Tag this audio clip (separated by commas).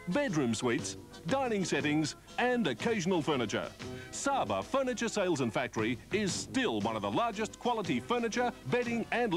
Speech, Music